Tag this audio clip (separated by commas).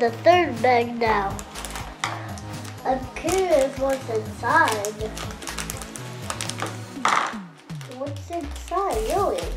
kid speaking, Music, Speech